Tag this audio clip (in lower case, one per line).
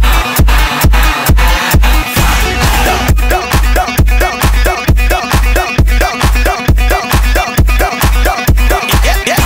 music